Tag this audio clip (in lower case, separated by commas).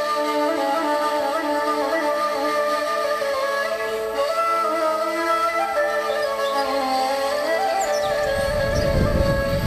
music, bird